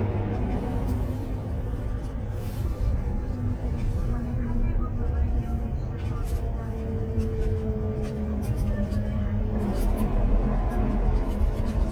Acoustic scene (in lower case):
bus